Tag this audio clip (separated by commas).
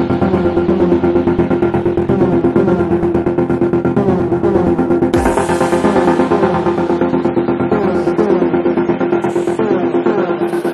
Music